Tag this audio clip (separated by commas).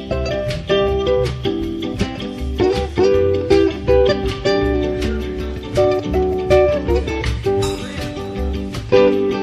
Speech, Flamenco, Music, Ukulele, Plucked string instrument, Guitar, Musical instrument